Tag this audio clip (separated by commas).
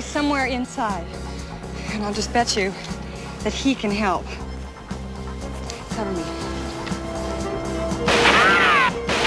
outside, urban or man-made, Music, Speech